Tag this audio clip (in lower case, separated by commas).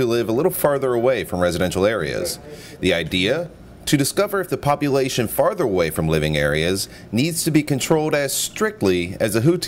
speech